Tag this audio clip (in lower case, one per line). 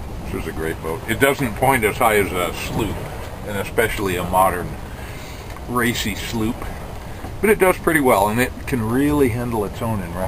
wind